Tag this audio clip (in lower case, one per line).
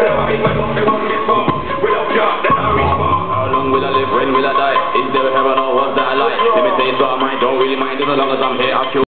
music
dubstep
electronic music